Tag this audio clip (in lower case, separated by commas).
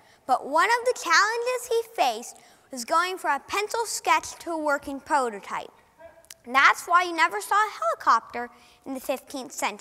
speech